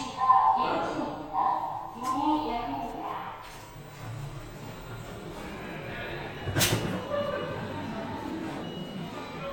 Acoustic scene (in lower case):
elevator